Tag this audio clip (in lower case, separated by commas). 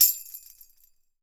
music, percussion, tambourine, musical instrument